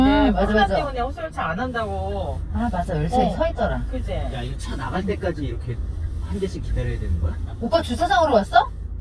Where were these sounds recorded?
in a car